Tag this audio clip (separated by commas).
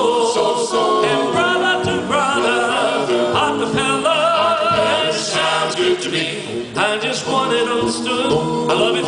Music